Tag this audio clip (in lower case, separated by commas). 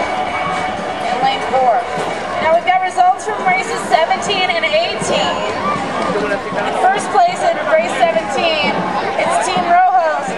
speech, kayak, vehicle, water vehicle, music